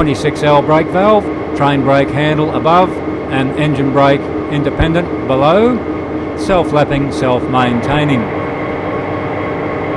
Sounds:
heavy engine (low frequency)
speech
idling
engine

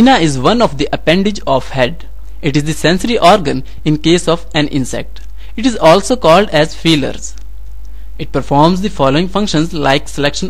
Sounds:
speech

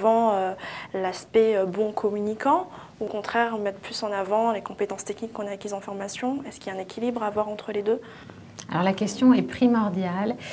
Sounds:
speech

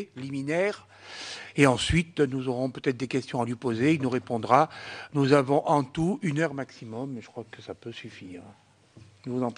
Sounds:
speech

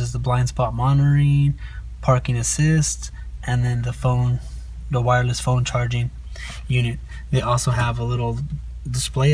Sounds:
speech

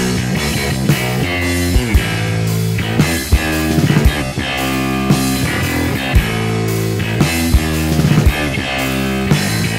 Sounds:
plucked string instrument
guitar
punk rock
musical instrument
bass guitar
music

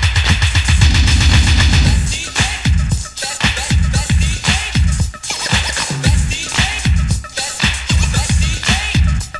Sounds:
music

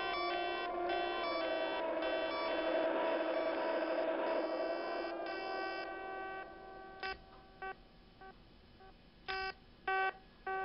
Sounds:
music
distortion

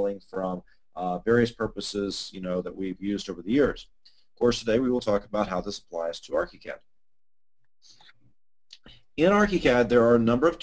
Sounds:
speech

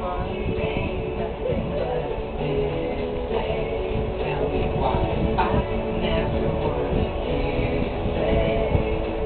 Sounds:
choir
music
male singing

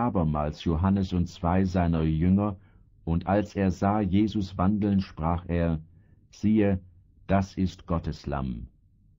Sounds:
speech synthesizer
speech

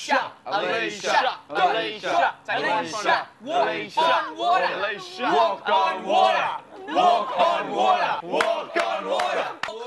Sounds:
speech

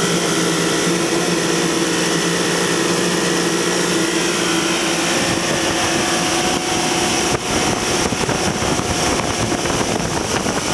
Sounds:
vehicle
water vehicle
motorboat

